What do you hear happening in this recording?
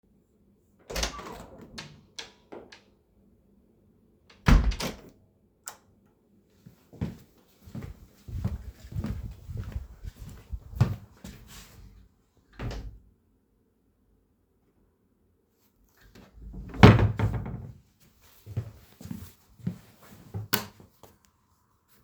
Having come home from the University; you open the door; turn the lights on and walk through the hallway and open and close your rooms door.